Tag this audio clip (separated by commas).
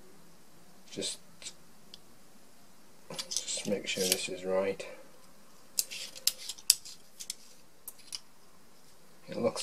inside a small room, Speech